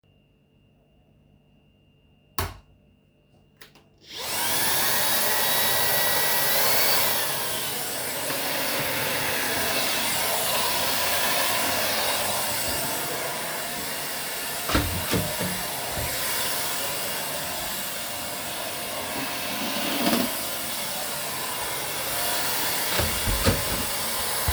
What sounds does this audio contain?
light switch, vacuum cleaner, door